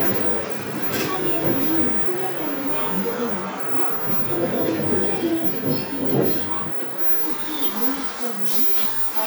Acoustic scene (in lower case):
bus